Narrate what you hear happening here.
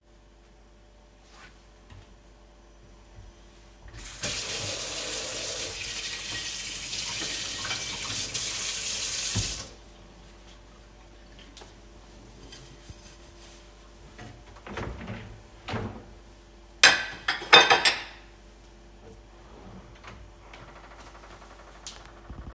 I turned on the sink and washed a plate. After turning off the water, I opened a drawer, placed the plate inside, and closed the drawer.